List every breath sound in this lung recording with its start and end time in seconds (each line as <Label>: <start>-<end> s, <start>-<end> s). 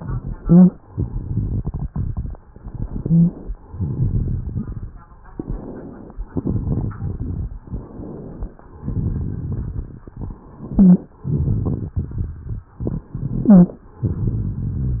Inhalation: 0.85-2.35 s, 3.66-4.88 s, 6.28-7.51 s, 8.80-10.11 s, 11.29-12.62 s, 13.98-15.00 s
Exhalation: 2.49-3.57 s, 5.26-6.22 s, 7.61-8.58 s, 10.44-11.18 s, 12.85-13.94 s
Rhonchi: 2.85-3.57 s, 10.44-11.18 s, 13.40-13.94 s
Crackles: 0.85-2.35 s, 3.66-4.88 s, 6.28-7.51 s, 8.80-10.11 s, 11.29-12.62 s, 12.88-13.40 s, 13.98-15.00 s